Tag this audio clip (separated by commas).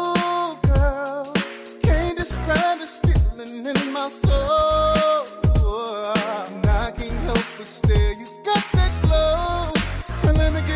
Rhythm and blues, Music